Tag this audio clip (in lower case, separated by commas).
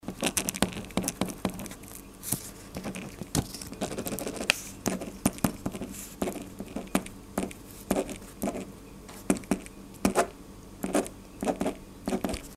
writing, domestic sounds